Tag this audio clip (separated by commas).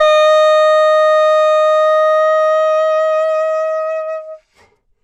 Musical instrument, woodwind instrument, Music